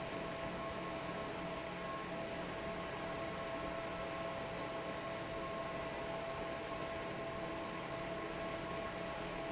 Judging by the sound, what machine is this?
fan